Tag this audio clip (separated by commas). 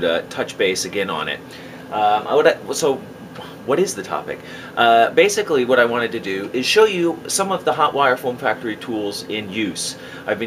Speech